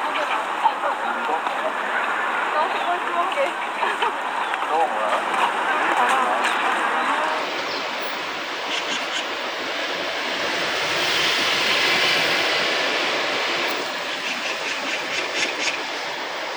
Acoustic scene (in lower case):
park